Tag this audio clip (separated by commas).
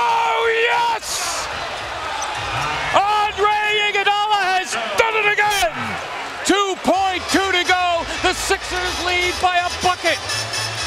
Speech, Basketball bounce, Music